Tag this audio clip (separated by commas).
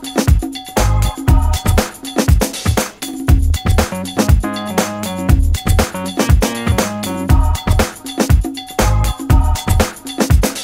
Music